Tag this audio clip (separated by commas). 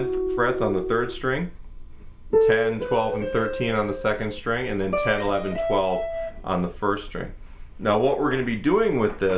Guitar, Musical instrument, Speech